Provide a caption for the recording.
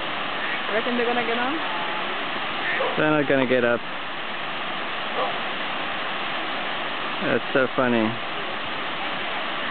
Static noise in the background followed by two adults speaking